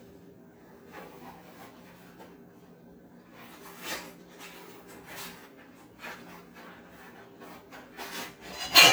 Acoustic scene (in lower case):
kitchen